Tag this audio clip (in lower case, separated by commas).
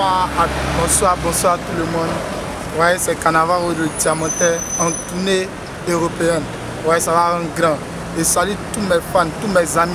speech